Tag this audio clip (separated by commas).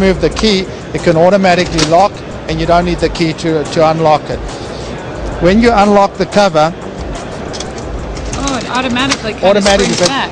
Speech